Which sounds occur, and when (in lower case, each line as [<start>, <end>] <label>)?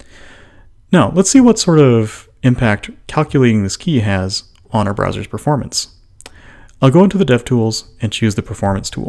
[0.00, 0.65] breathing
[0.00, 9.05] mechanisms
[0.88, 2.24] man speaking
[2.39, 2.93] man speaking
[3.06, 4.44] man speaking
[4.51, 4.62] clicking
[4.67, 5.91] man speaking
[6.24, 6.67] breathing
[6.63, 6.75] clicking
[6.79, 7.85] man speaking
[7.97, 9.05] man speaking